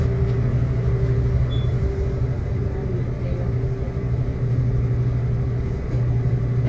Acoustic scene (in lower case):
bus